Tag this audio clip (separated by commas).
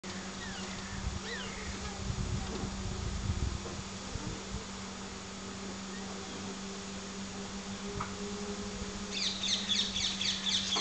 Animal